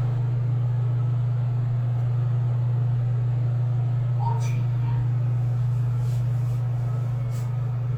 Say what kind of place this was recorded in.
elevator